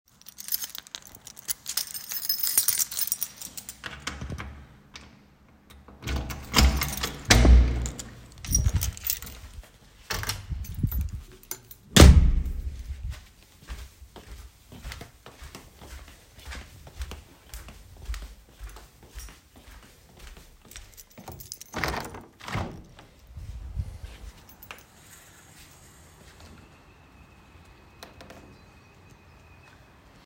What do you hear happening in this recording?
I take out my keys, open the door to out home, close the door. Then I walk to the living room and open the window to let some fresh air in, meanwhile the birds are whistling and singing.